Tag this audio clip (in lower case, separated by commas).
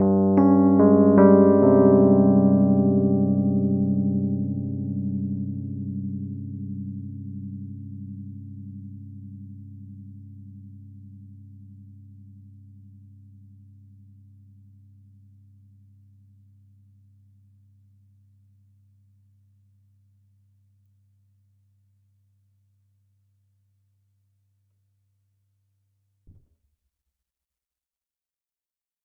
keyboard (musical), music, musical instrument, piano